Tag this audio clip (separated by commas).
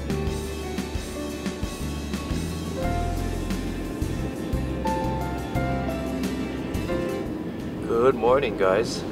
Music, Speech